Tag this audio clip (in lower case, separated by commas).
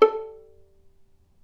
music, musical instrument, bowed string instrument